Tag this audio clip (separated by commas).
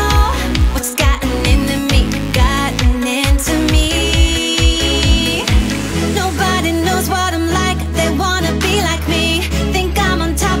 Music